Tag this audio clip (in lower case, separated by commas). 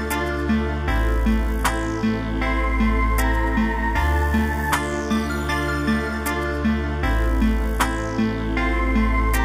music